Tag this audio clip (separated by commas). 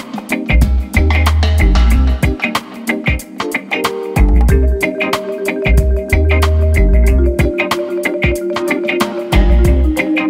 Music